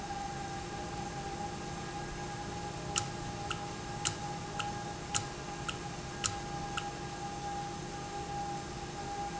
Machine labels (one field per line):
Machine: valve